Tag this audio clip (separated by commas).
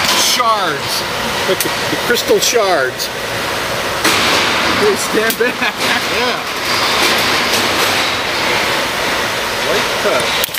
Speech, inside a large room or hall